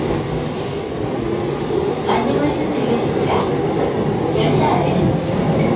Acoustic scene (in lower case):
subway train